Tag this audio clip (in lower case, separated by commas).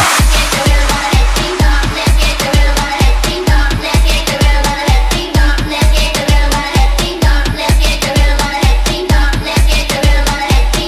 music